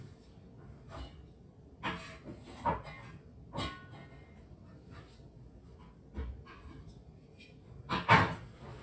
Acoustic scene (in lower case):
kitchen